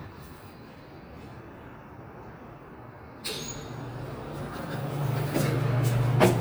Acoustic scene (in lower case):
elevator